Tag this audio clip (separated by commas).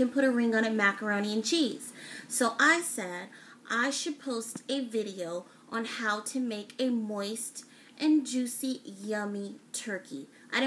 Speech